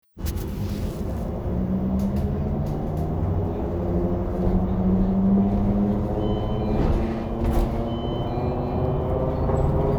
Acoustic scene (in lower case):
bus